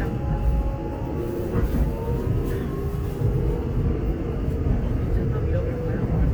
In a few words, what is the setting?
subway train